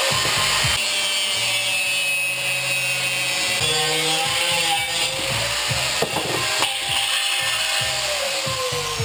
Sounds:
Music

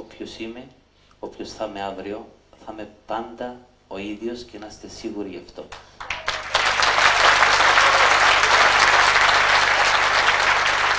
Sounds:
Speech

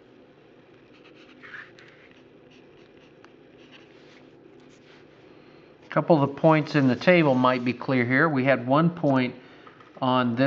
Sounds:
Speech

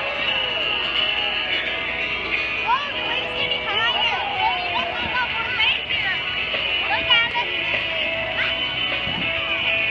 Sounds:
Music, Speech

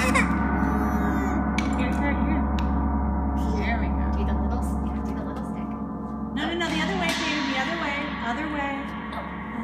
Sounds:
playing gong

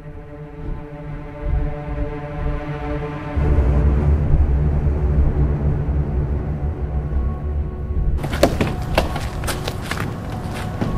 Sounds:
Music

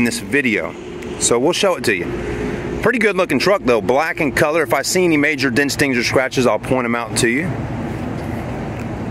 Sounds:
Speech, Vehicle

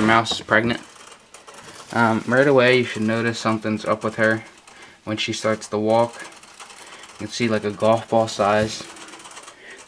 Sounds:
Speech

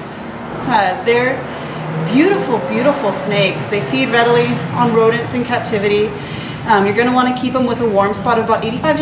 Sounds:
Speech

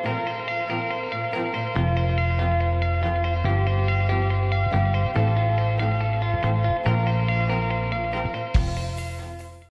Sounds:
Music

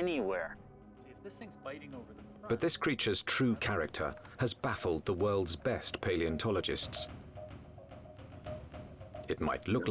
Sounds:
Speech, Music

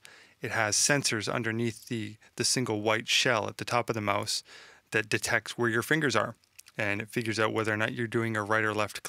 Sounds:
Speech

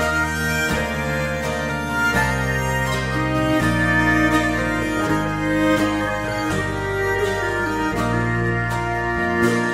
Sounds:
Music

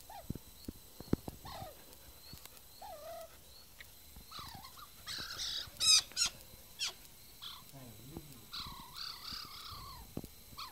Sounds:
Animal, outside, rural or natural

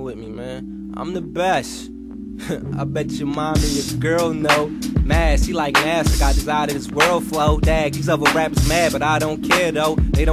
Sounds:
Speech, Music

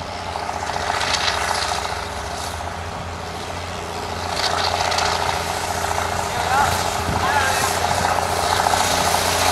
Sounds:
Engine, Vehicle, Heavy engine (low frequency), Speech

